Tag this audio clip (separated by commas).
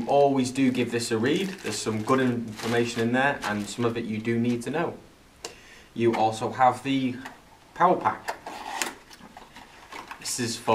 Speech